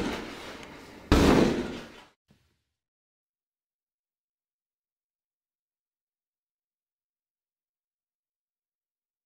Pounding on a door